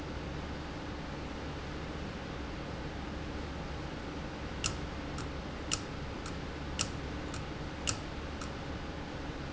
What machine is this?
valve